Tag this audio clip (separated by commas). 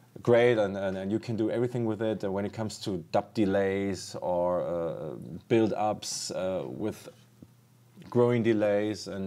Speech